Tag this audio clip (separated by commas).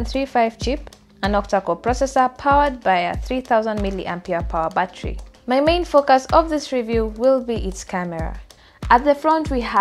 Speech